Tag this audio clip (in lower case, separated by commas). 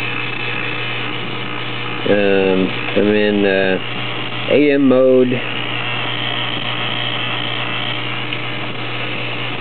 radio, speech